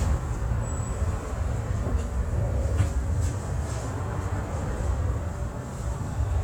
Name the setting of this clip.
bus